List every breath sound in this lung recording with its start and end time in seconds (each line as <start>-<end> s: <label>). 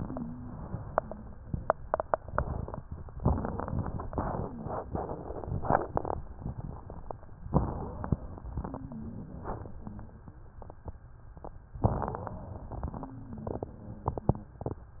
0.00-1.49 s: wheeze
3.18-4.11 s: inhalation
3.18-4.11 s: wheeze
4.13-4.90 s: wheeze
7.54-8.63 s: inhalation
7.54-8.63 s: wheeze
8.63-10.46 s: exhalation
8.65-10.46 s: wheeze
11.83-13.00 s: inhalation
11.83-13.00 s: wheeze
13.04-14.57 s: exhalation
13.04-14.57 s: wheeze